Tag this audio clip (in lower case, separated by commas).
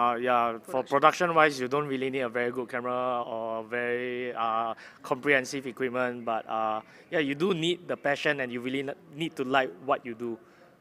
speech